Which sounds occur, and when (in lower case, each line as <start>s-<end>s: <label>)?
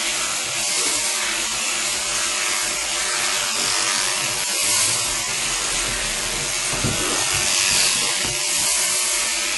0.0s-9.5s: electric razor
3.5s-3.7s: generic impact sounds
4.2s-4.4s: generic impact sounds
5.7s-6.5s: generic impact sounds
6.7s-7.0s: generic impact sounds
7.3s-8.3s: generic impact sounds